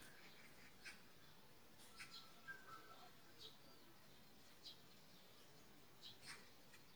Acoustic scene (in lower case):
park